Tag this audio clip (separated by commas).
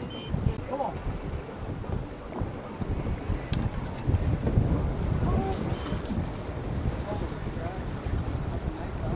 Speech, outside, rural or natural